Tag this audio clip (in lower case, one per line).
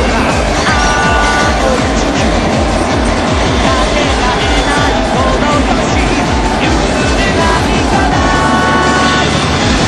music